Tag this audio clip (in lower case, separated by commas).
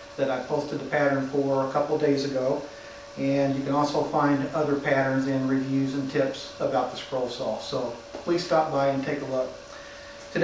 speech